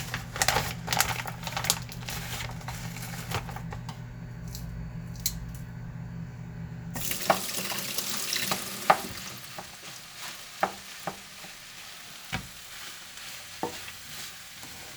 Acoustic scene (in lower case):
kitchen